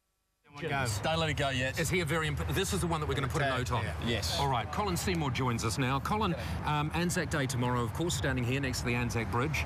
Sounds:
speech

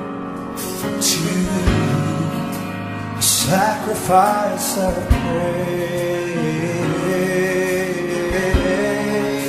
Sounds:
music

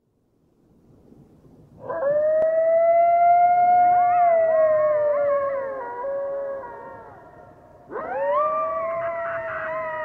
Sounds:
coyote howling

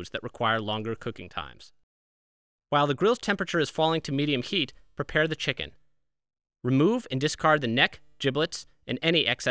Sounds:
speech

